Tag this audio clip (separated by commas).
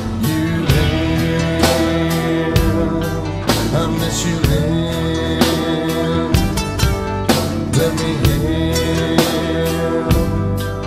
Music